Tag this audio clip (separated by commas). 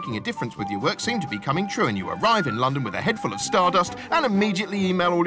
Speech, Music